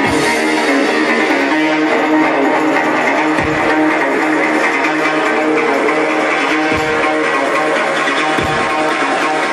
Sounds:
music

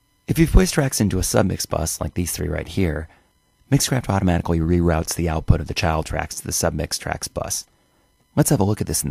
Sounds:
speech

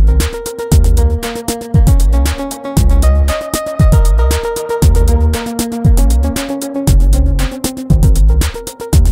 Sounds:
music

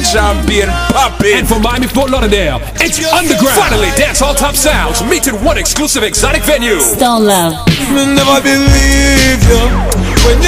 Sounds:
reggae
speech
music

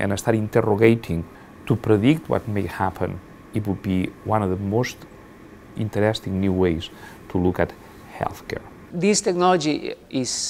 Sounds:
speech

